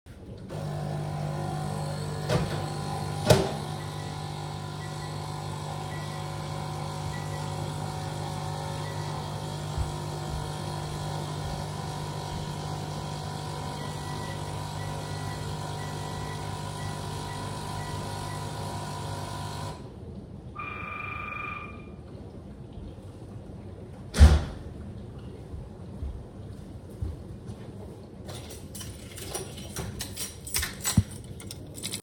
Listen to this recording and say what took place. The dishwasher was running. I turned on the coffee machine, then I turned on the microwave. After microwave and coffee machine finished, the doorbell rang and I walked to my keys and grabbed my keys.